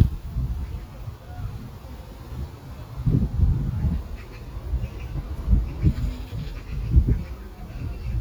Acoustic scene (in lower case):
park